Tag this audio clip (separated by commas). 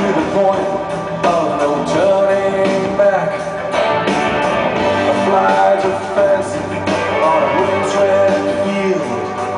Music